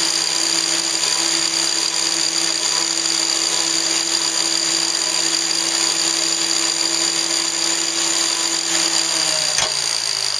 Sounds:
engine

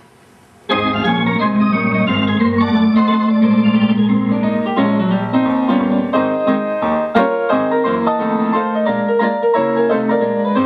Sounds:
playing electronic organ
organ
electronic organ

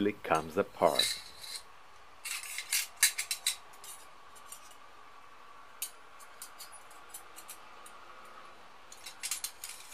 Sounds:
cutlery

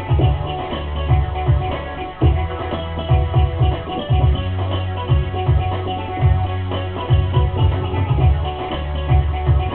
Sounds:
music

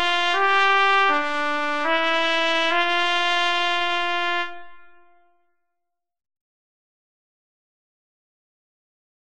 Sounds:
trumpet
music

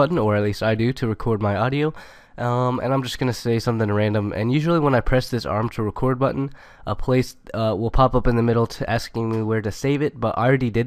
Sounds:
speech

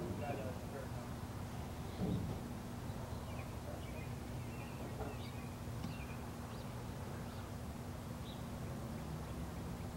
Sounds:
speech

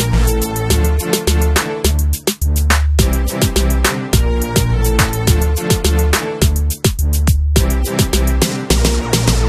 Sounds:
music
hip hop music

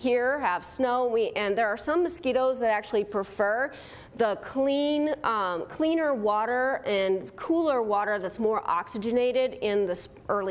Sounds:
mosquito buzzing

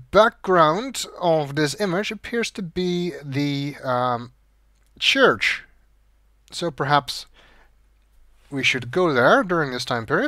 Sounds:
speech

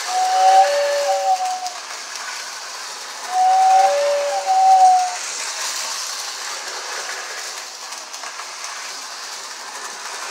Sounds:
train whistling

